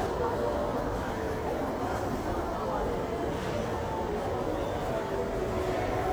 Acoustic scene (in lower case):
crowded indoor space